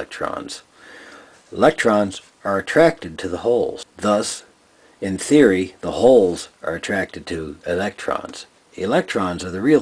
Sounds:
Speech

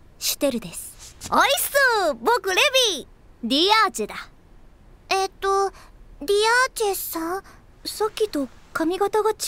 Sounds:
Speech

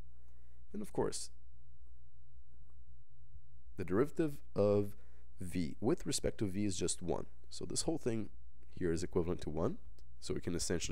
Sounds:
Speech, inside a small room

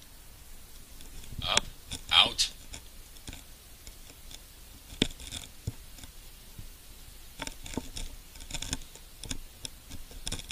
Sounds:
Speech

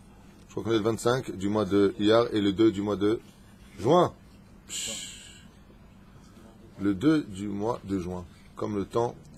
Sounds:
Speech

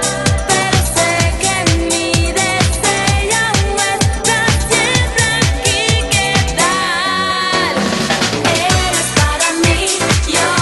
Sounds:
Music

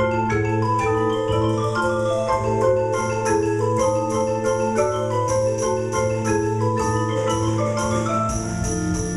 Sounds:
Vibraphone, Music, playing vibraphone

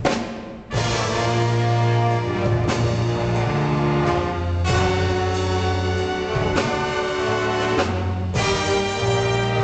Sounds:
Music

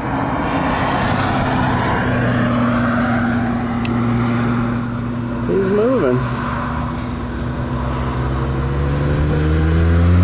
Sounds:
Speech

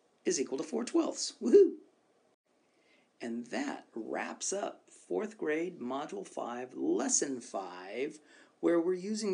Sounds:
Speech, Narration

